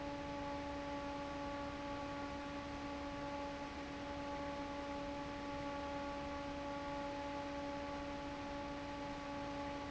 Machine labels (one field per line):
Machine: fan